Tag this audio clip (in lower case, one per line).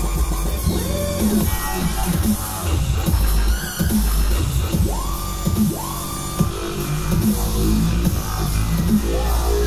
music
dance music